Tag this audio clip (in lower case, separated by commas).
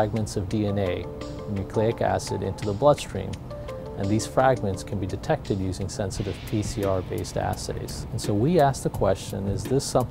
music, speech